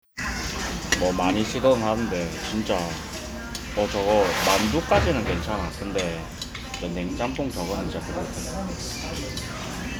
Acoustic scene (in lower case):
restaurant